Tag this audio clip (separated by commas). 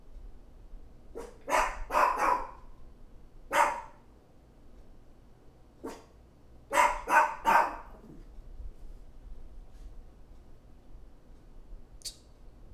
Dog, Animal, Domestic animals